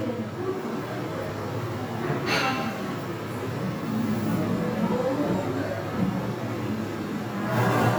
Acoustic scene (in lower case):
crowded indoor space